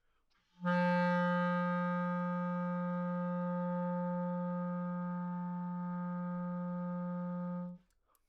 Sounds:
Music, Musical instrument, woodwind instrument

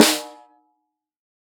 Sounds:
Percussion, Drum, Snare drum, Musical instrument, Music

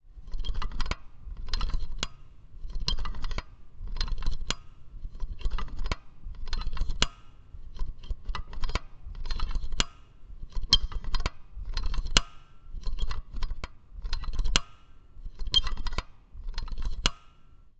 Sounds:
Mechanisms

